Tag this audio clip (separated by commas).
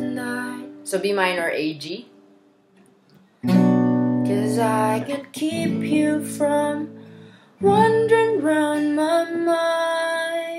Strum, Musical instrument, Guitar, Speech, Plucked string instrument, Acoustic guitar, Music